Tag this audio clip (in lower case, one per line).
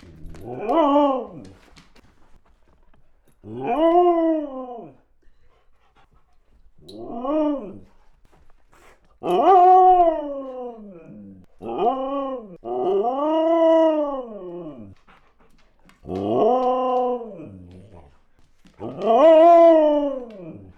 animal
domestic animals
dog